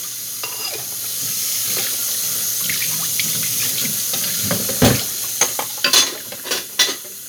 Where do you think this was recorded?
in a kitchen